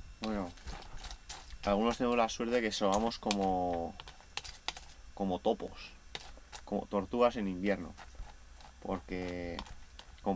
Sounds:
speech

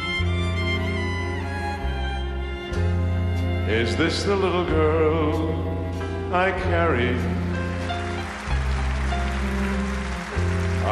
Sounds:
music

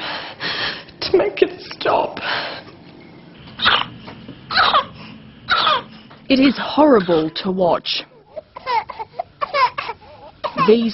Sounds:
cough
speech

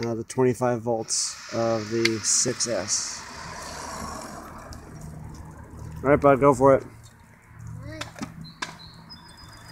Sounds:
speech

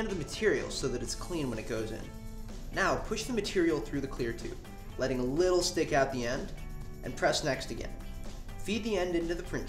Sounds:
speech
music

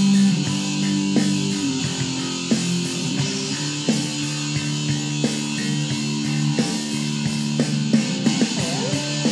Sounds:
music
plucked string instrument
musical instrument
strum
guitar

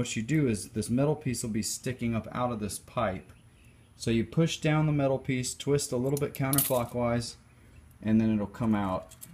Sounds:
speech

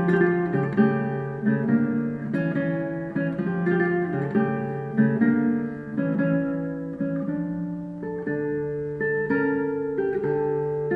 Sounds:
plucked string instrument
acoustic guitar
strum
musical instrument
guitar
music
playing acoustic guitar

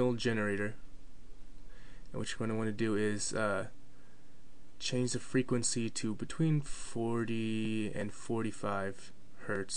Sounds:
speech

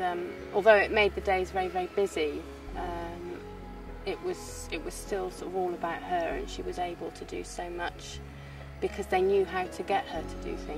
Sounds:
speech
music

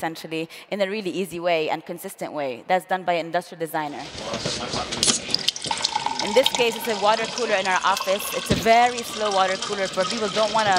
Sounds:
speech
inside a small room

